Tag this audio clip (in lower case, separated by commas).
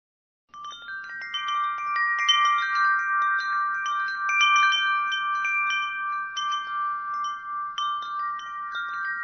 wind chime, chime